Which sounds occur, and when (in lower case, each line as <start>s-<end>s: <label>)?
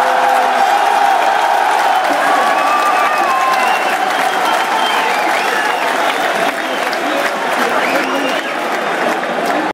0.0s-9.7s: cheering
0.5s-9.7s: applause
2.5s-4.0s: shout
2.5s-4.0s: whistling
4.1s-5.8s: whistling
6.5s-6.9s: whistling
7.8s-8.6s: whistling